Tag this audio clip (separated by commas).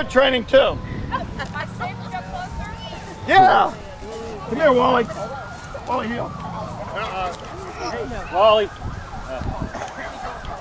Speech